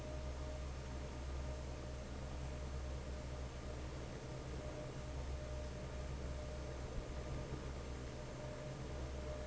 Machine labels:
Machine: fan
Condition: normal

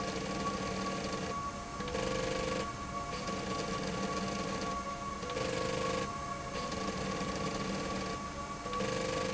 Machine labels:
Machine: slide rail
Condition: abnormal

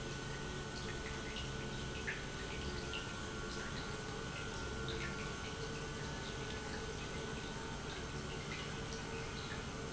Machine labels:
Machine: pump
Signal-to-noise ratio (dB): 0 dB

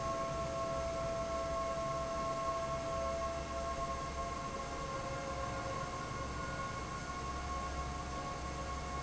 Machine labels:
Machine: fan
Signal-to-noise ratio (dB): -6 dB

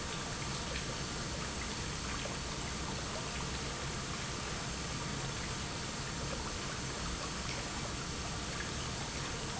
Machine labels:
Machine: pump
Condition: normal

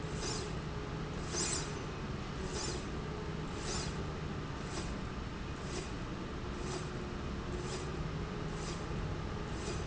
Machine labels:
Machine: slide rail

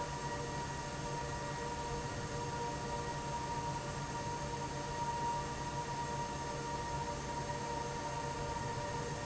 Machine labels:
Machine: fan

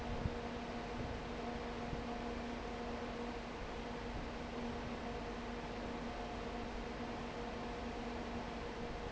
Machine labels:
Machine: fan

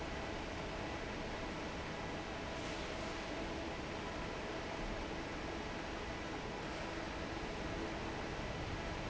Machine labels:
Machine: fan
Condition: normal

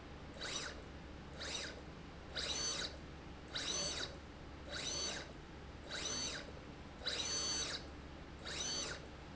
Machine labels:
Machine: slide rail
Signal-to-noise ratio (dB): 6 dB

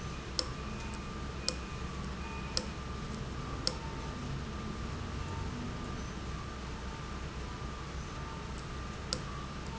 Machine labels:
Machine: valve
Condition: abnormal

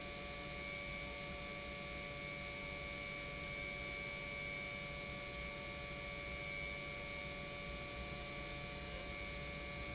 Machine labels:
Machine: pump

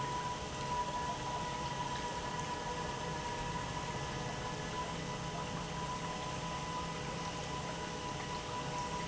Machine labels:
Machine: pump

